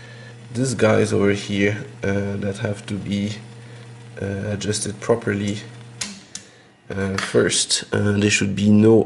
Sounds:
typing on typewriter

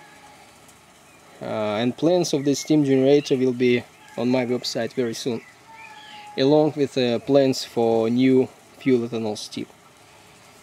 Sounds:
speech

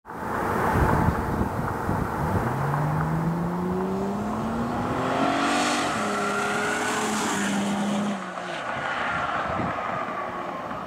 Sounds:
vehicle, car

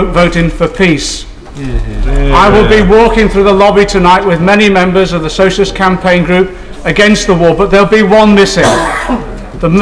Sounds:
speech, narration, man speaking

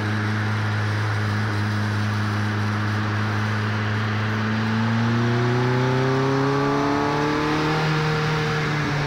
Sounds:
accelerating, engine, car, vehicle

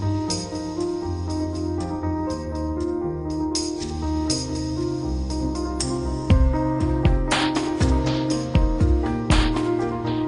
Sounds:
music

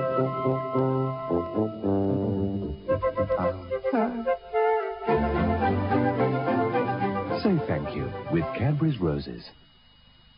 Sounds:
speech, music

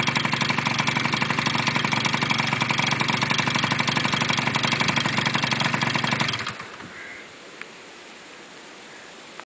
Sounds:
idling, medium engine (mid frequency), vehicle, engine

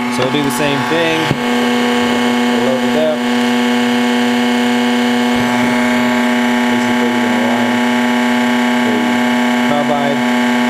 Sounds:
speech, inside a small room

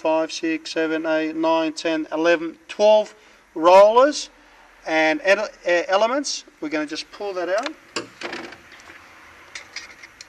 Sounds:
speech

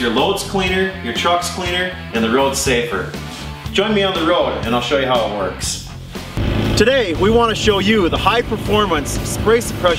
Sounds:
music, speech

